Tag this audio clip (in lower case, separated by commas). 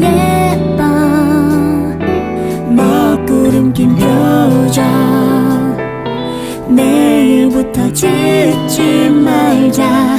guitar, musical instrument, music, plucked string instrument, strum, acoustic guitar